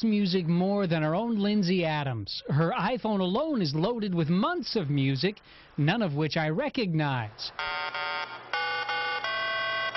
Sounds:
music, speech

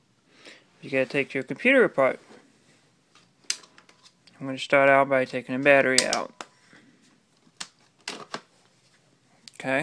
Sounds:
speech

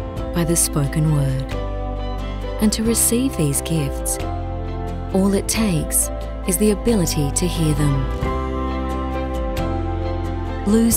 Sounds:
music, speech

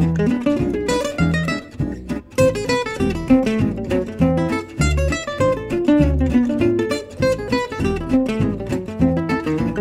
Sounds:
musical instrument, guitar, strum, plucked string instrument, music

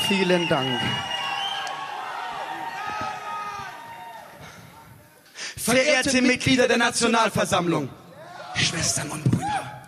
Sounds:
speech

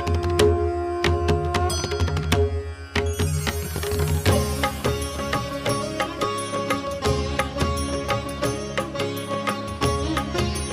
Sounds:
music

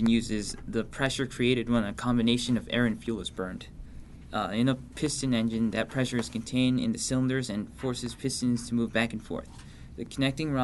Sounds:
speech

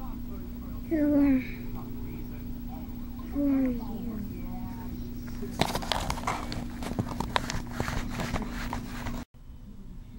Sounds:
speech

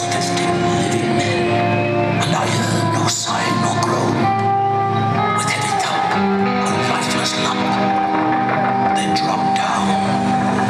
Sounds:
male speech, speech, music

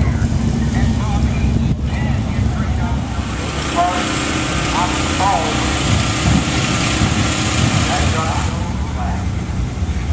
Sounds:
car, vehicle, motor vehicle (road), speech

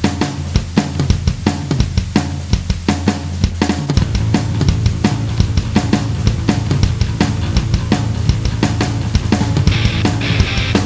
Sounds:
hum

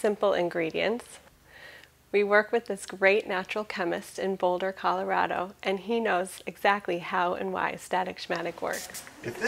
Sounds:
speech, spray

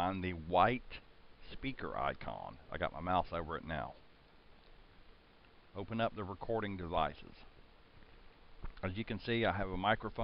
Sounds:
speech

